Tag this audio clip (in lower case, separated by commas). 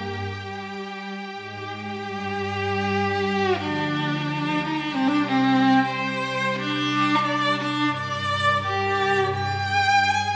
musical instrument, music, violin